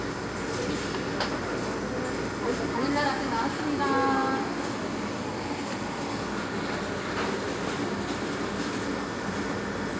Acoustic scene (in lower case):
cafe